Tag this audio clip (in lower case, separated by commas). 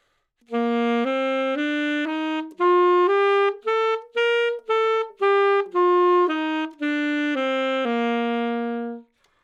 wind instrument, musical instrument, music